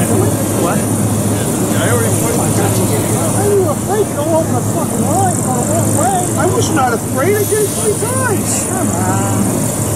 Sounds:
Speech, Vehicle, outside, urban or man-made, Hubbub

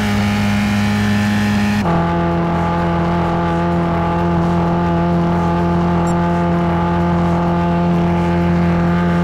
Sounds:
Music

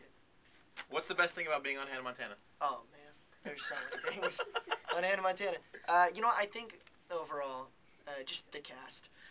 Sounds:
Speech

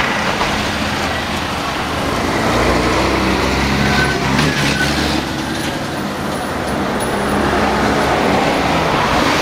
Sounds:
Bus, Vehicle

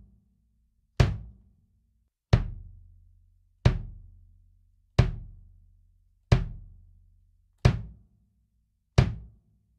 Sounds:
playing bass drum

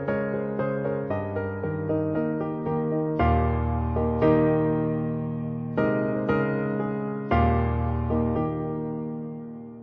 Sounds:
Music

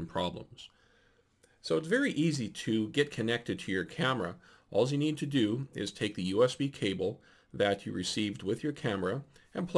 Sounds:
Speech

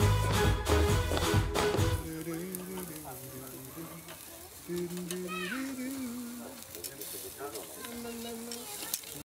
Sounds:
Music, Speech

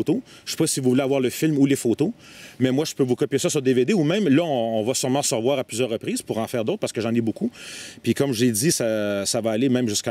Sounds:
Speech

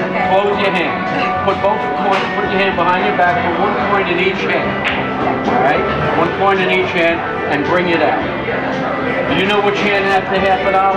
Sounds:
Speech, Music

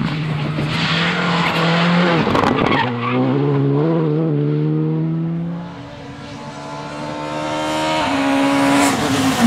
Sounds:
Motor vehicle (road), auto racing, Vehicle, Car, Tire squeal

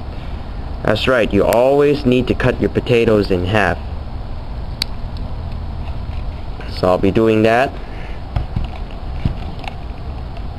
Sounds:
Speech

